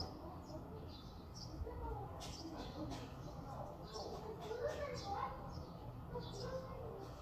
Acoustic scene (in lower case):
residential area